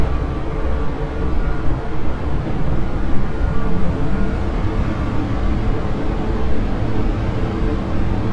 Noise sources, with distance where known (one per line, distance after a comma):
engine of unclear size
reverse beeper, far